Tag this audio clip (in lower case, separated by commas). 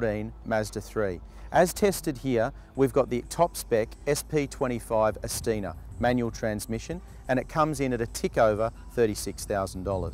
speech